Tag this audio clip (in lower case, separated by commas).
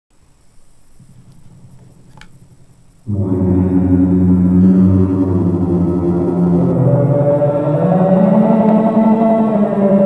music, effects unit